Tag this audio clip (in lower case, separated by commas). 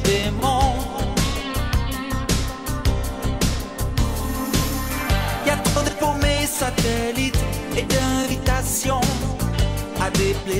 jazz, music, rhythm and blues